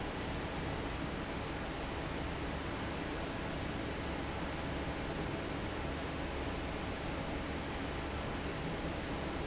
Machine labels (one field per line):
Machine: fan